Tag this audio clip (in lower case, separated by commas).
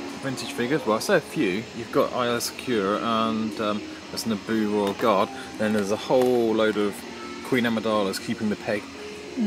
speech, music